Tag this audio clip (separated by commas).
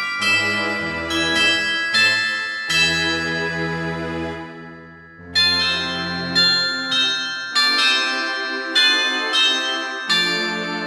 Music